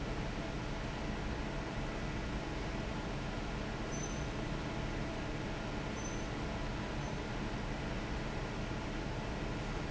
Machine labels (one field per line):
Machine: fan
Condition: normal